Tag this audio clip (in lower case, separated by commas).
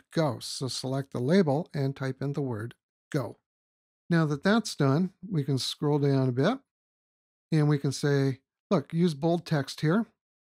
speech synthesizer, speech